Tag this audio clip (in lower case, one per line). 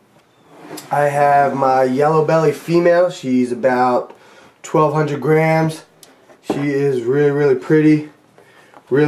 inside a small room
speech